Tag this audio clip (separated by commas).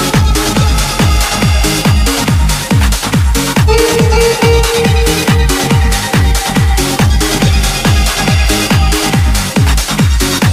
Music, Trance music, House music, Electronic dance music, Electronic music